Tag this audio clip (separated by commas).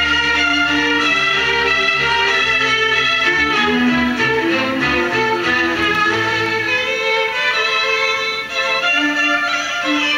Musical instrument, Violin, Music